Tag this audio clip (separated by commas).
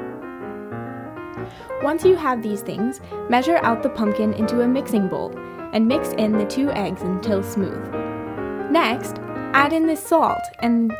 Speech, Music